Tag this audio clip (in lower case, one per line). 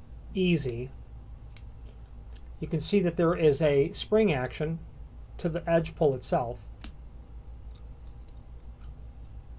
speech